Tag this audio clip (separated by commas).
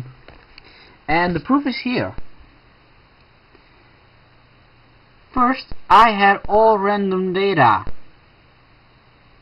Speech